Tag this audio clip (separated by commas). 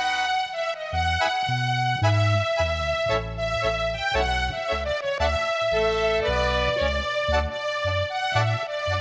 Bowed string instrument, Music